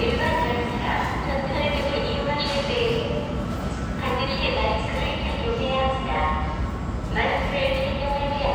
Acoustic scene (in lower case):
subway station